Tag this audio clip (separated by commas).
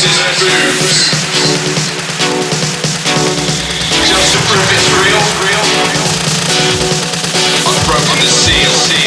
Dubstep, Music